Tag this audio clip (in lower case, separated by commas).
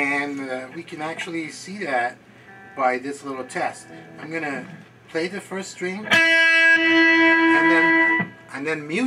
guitar, music, plucked string instrument, speech, strum, acoustic guitar, musical instrument